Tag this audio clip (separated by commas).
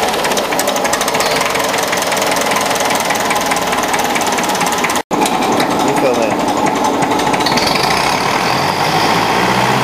Engine, Speech